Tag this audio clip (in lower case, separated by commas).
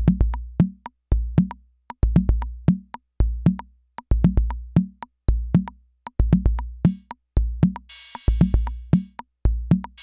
music, drum machine